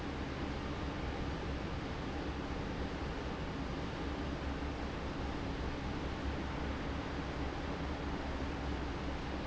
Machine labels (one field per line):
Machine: fan